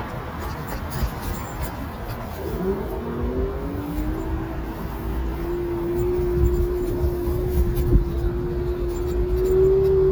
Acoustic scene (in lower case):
street